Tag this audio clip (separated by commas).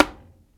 Tap